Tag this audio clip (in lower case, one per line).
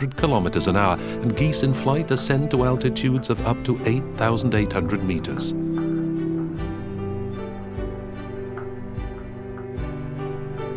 music
speech